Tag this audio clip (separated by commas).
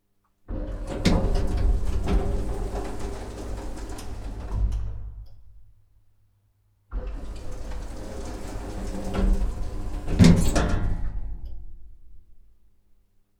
Sliding door, Door, Domestic sounds